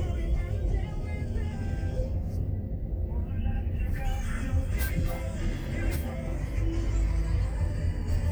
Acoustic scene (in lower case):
car